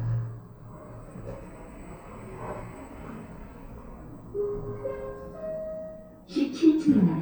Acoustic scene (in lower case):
elevator